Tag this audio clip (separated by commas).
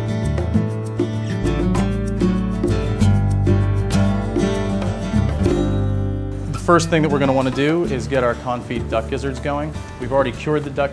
Music, Speech